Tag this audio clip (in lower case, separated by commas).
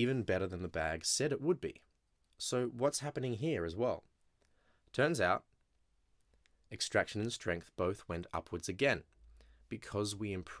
speech